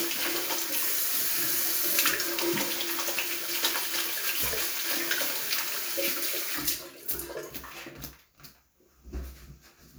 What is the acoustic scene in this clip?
restroom